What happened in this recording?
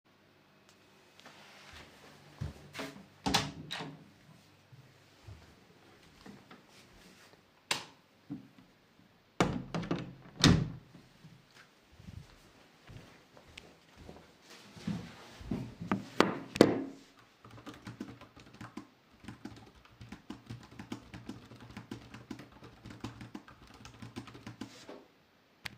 A person opening a door and stepping into his office. He turns on the light, then before closing the door behind him. After that he goes to his desk and starts typing on the keyboard.